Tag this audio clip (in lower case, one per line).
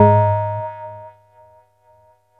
bell